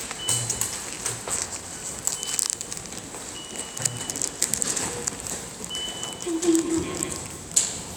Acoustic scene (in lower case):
subway station